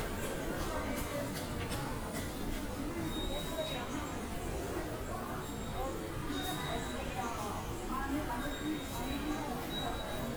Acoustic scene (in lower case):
subway station